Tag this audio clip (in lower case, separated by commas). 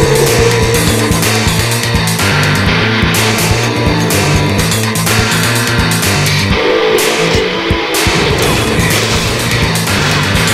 music, angry music